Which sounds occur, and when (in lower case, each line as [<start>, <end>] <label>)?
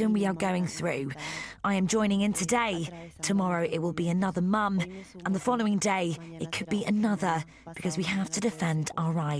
[0.00, 1.14] woman speaking
[0.00, 9.35] background noise
[1.20, 1.64] breathing
[1.66, 9.35] woman speaking